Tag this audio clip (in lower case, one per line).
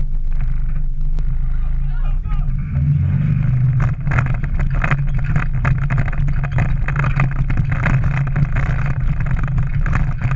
vehicle